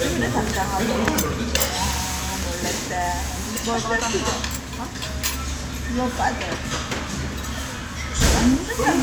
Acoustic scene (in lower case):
restaurant